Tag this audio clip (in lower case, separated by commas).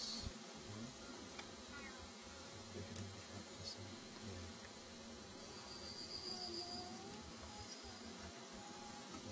speech